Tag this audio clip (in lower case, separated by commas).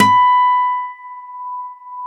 music, musical instrument, acoustic guitar, plucked string instrument, guitar